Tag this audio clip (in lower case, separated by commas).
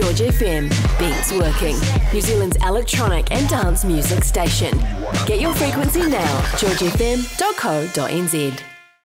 music, electronica, dubstep, speech, dance music, electronic dance music, electronic music, techno, disco